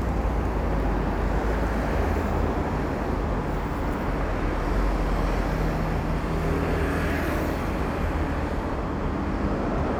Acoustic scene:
street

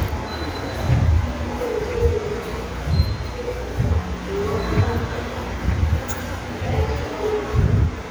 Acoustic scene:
subway station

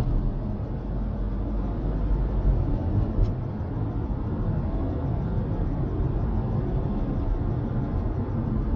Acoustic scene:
car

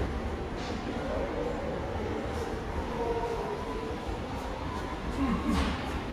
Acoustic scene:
subway station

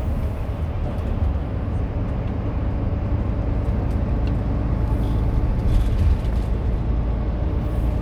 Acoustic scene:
car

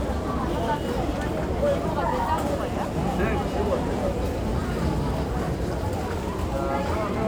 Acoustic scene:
crowded indoor space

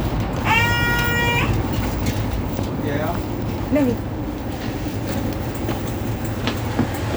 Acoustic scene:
bus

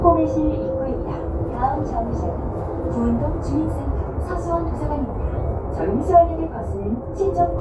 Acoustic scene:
bus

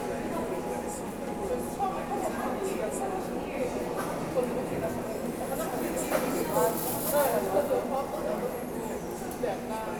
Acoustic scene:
subway station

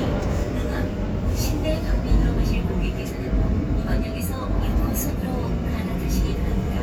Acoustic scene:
subway train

